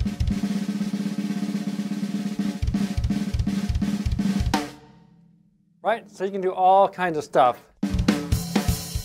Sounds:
drum kit, drum, speech, snare drum, hi-hat, musical instrument, percussion, music, cymbal

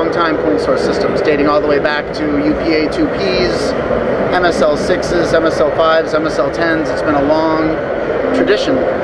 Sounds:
speech

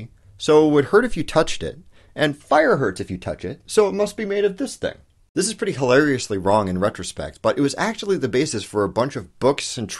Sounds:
speech, narration

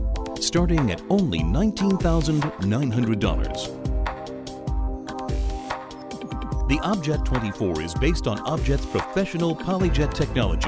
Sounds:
music, speech

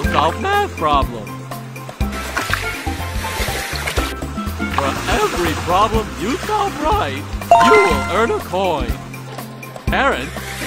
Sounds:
speech, water, music, slosh

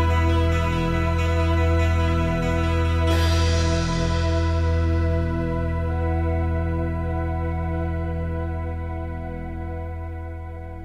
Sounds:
tender music, music

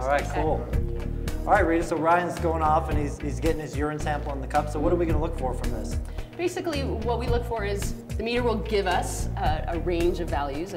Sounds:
music, speech

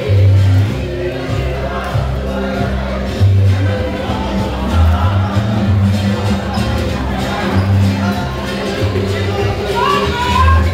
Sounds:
music, speech

